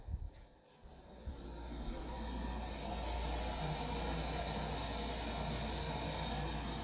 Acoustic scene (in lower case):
kitchen